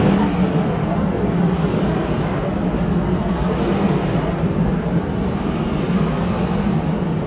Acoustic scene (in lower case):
subway station